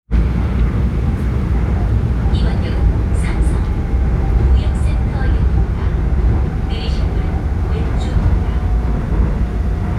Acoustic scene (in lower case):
subway train